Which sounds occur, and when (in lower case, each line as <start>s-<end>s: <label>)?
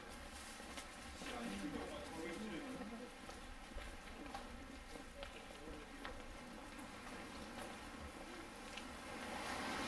0.0s-9.8s: background noise
0.7s-9.8s: walk
1.2s-3.1s: male speech
4.1s-6.8s: male speech
7.5s-8.5s: male speech
9.4s-9.8s: motor vehicle (road)